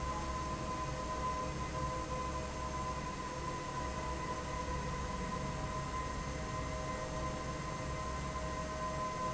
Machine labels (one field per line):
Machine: fan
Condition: normal